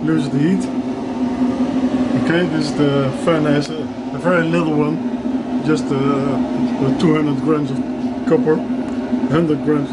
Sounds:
gurgling, speech

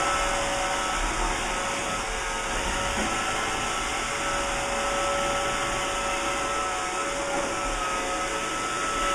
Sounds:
vacuum cleaner cleaning floors

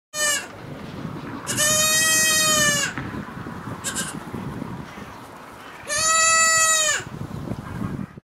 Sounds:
sheep, bleat

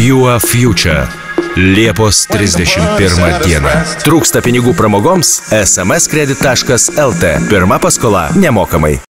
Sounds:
music, speech

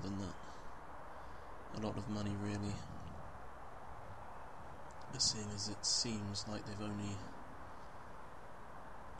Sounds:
speech

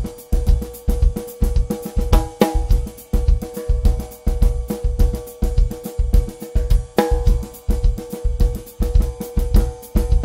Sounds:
hi-hat, bass drum, percussion, cymbal, rimshot, drum kit, drum, snare drum

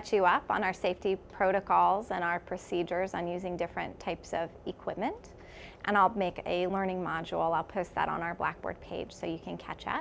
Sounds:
speech

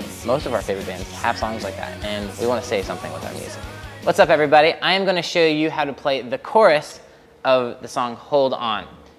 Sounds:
speech, music

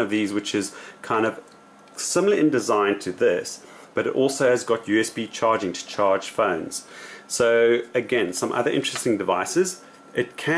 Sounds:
speech

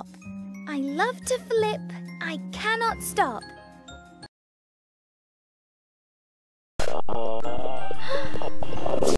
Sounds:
speech, music

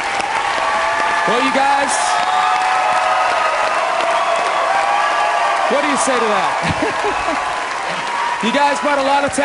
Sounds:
man speaking, speech, monologue

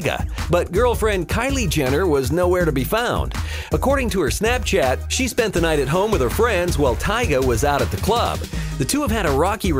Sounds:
music, speech

